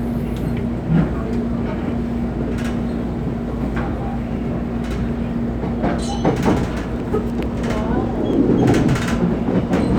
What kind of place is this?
subway train